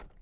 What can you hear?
wooden drawer opening